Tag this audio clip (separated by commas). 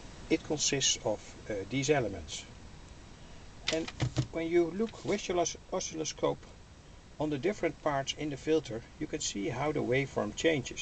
Speech